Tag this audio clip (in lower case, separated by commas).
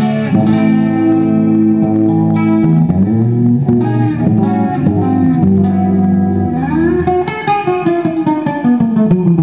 musical instrument, music, plucked string instrument, acoustic guitar, guitar, strum